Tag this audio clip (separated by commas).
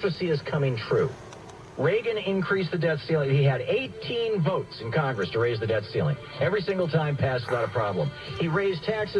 Music, Speech, Vehicle, Car